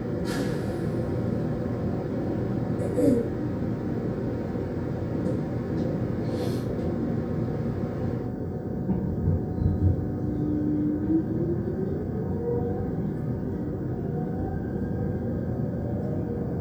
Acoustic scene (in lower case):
subway train